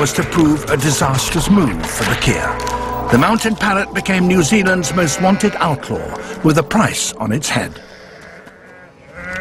A man speaks and a sheep bleats